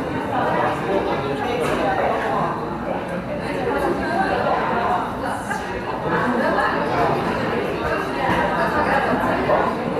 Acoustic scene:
cafe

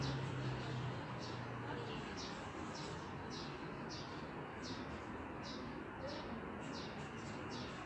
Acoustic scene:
residential area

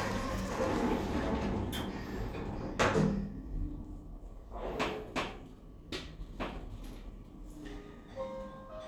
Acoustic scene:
elevator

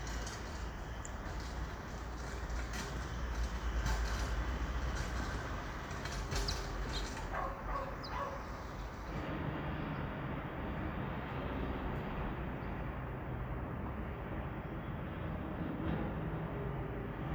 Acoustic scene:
residential area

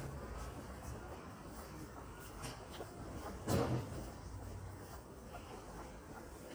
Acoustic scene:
residential area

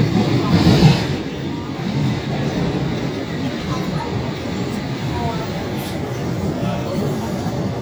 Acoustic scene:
subway train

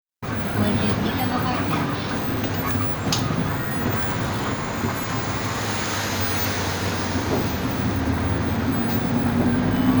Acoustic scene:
bus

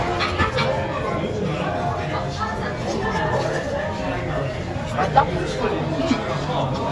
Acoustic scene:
restaurant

